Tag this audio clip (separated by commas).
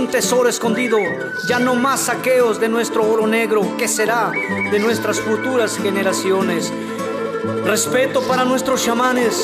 Rhythm and blues, Music, Speech